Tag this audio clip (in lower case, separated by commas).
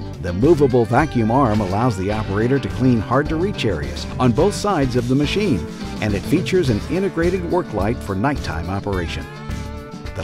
speech, music